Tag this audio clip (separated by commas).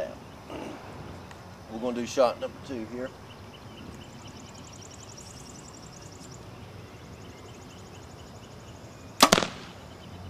Speech